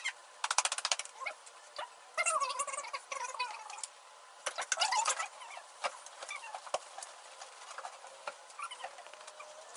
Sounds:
inside a large room or hall

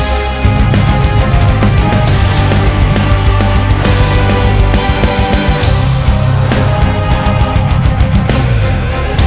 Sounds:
Music

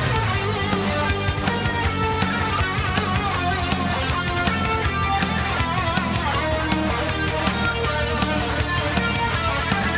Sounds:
Music

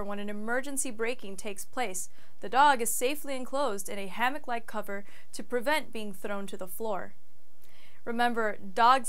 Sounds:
Speech

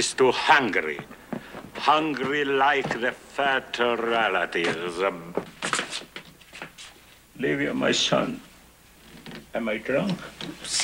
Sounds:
Speech

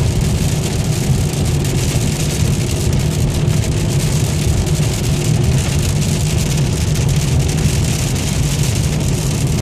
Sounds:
Rain on surface

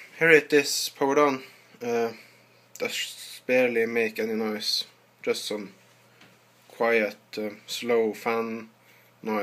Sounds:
Speech

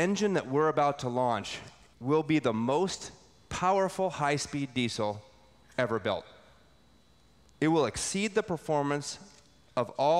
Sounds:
Speech

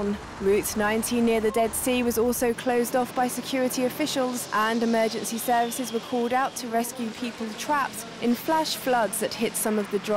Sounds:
Speech

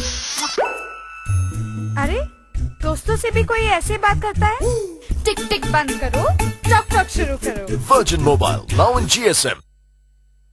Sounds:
Music, Speech

